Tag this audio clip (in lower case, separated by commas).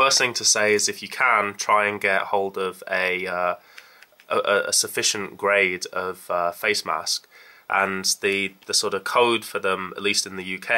speech